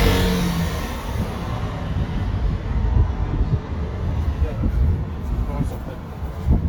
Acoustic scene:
residential area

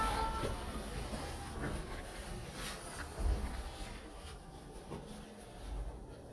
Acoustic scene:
elevator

